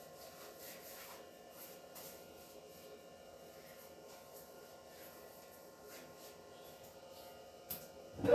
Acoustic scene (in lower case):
restroom